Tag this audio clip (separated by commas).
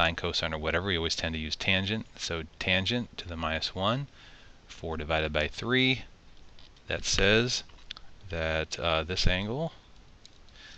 Speech